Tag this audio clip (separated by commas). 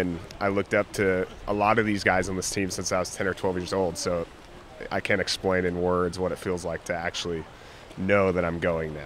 Speech